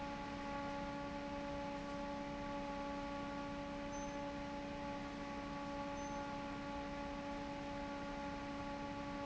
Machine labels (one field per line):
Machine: fan